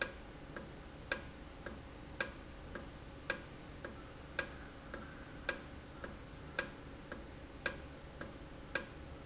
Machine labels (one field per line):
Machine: valve